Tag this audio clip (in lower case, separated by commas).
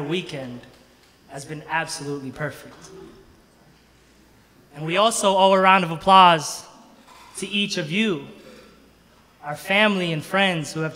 monologue, man speaking, speech